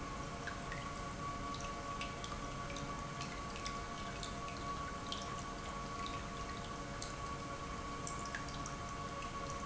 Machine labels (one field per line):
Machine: pump